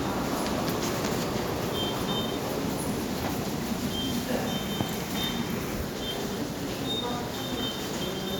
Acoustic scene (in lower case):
subway station